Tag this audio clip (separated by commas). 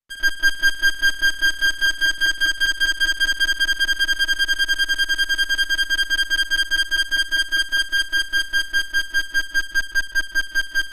Music